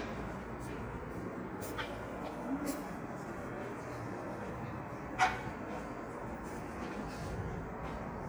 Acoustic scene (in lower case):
subway station